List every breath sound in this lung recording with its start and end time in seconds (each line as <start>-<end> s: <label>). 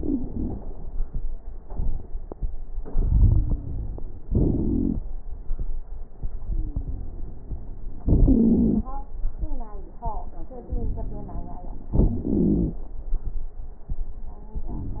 0.00-0.64 s: exhalation
0.00-0.64 s: wheeze
2.82-4.22 s: inhalation
3.15-4.22 s: wheeze
4.27-5.04 s: exhalation
4.27-5.04 s: wheeze
6.42-7.04 s: wheeze
6.42-7.40 s: inhalation
8.05-8.87 s: exhalation
8.30-8.88 s: wheeze
10.60-11.95 s: inhalation
10.60-11.95 s: crackles
11.94-12.75 s: exhalation
11.94-12.75 s: wheeze
14.68-15.00 s: inhalation
14.68-15.00 s: crackles